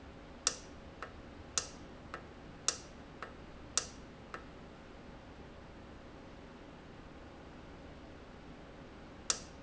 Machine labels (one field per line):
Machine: valve